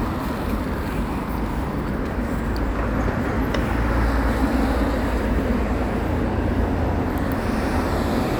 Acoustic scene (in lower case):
residential area